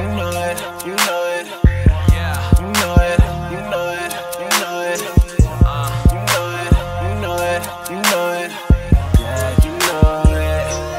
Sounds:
music

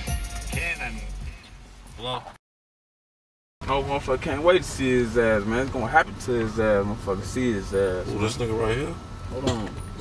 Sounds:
music
speech
pop music

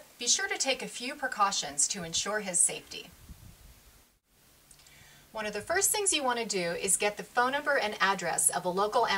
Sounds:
speech

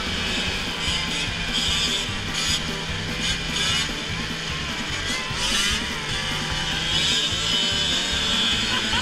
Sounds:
driving snowmobile

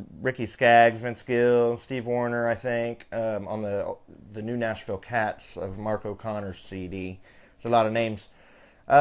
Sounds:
speech

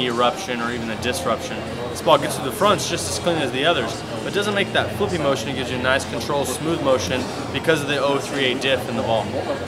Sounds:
speech

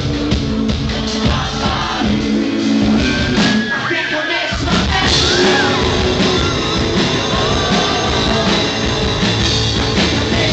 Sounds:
music

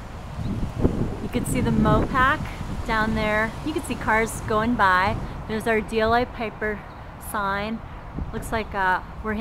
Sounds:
outside, urban or man-made
speech

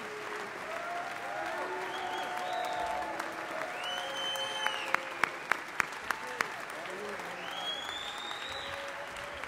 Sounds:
male speech
narration
speech

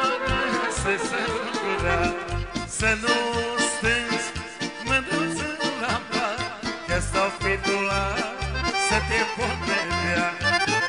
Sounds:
music

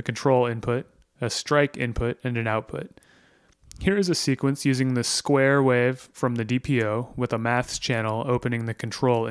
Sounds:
speech

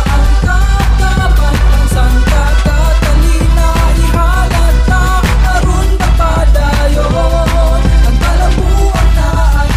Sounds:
music

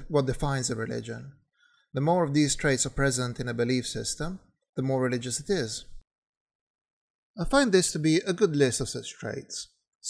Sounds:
speech

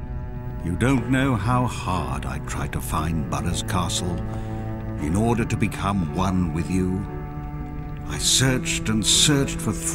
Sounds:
music
speech

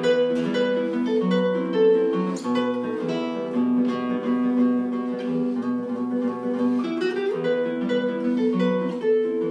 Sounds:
guitar
acoustic guitar
musical instrument
bass guitar
music

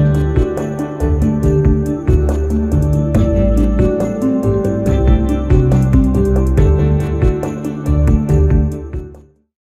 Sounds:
music

